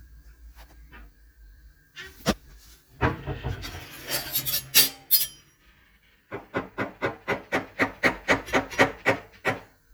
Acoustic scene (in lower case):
kitchen